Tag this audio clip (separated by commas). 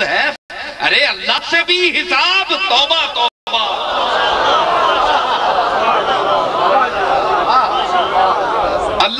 Narration, Male speech, Speech